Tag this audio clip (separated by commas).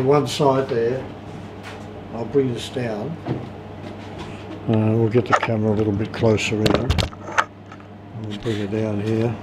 Speech